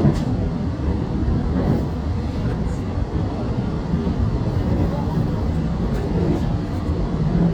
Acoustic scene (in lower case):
subway train